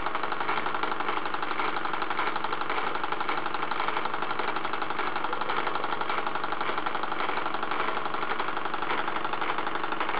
The engine is heard starting up